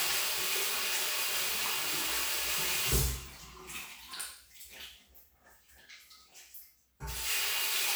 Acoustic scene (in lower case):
restroom